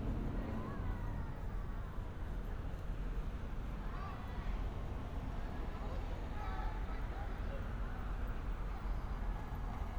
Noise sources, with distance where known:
unidentified human voice

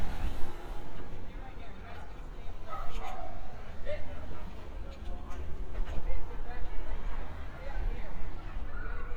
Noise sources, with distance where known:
person or small group talking

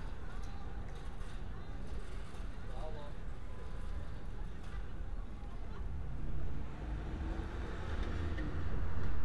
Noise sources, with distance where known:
engine of unclear size
person or small group talking

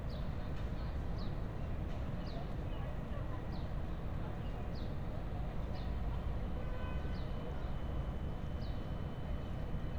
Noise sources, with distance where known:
person or small group talking, far

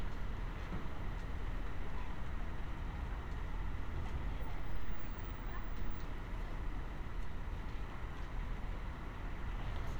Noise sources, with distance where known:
background noise

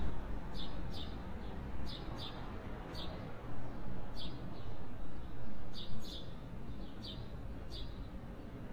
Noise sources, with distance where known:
background noise

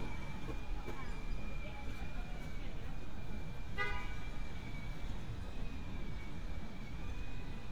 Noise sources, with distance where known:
car horn

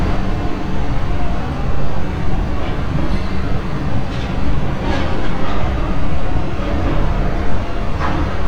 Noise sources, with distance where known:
large-sounding engine, near

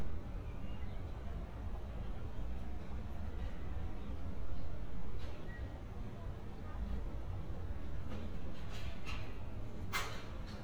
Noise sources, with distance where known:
non-machinery impact
person or small group talking, far

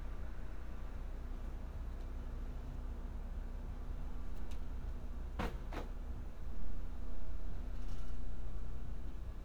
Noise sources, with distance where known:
background noise

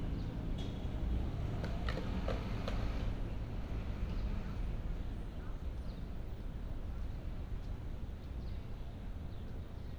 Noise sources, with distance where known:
medium-sounding engine
non-machinery impact
person or small group talking, far

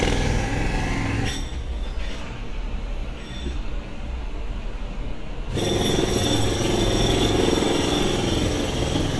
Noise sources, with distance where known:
jackhammer, near

